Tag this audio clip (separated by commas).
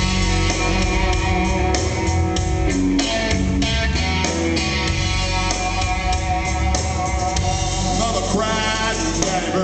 Music